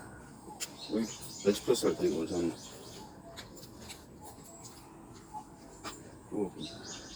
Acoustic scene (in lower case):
park